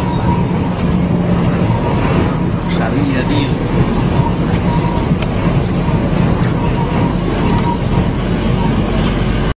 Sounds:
Truck, Vehicle, Speech

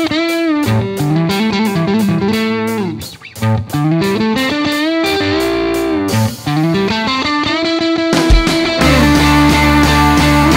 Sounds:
Electric guitar, Music

